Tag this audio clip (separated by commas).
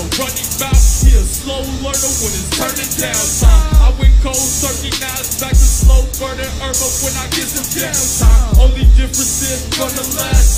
Music